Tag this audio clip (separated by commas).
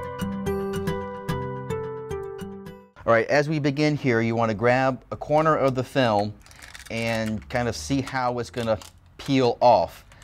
Music, Speech